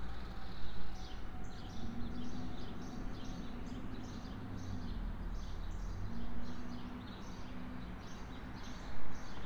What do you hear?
medium-sounding engine